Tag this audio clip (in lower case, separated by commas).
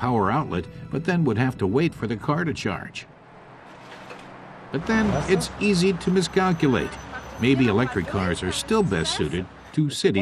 vehicle, music, speech